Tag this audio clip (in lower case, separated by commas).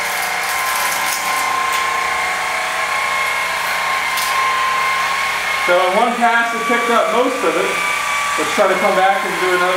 inside a small room, tools, speech